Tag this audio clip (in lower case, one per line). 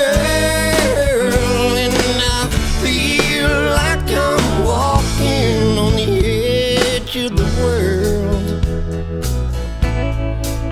music